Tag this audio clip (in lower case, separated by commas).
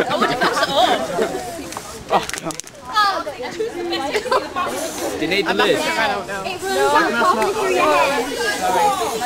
speech, spray